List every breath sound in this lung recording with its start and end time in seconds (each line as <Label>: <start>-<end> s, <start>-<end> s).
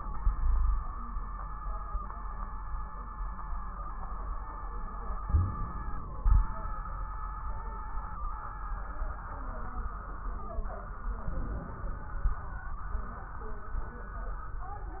Inhalation: 5.28-6.21 s, 11.28-12.32 s
Exhalation: 6.24-6.79 s
Wheeze: 5.28-5.55 s
Crackles: 6.24-6.79 s, 11.28-12.32 s